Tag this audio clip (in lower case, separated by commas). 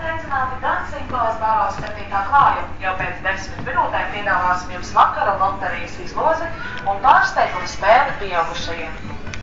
speech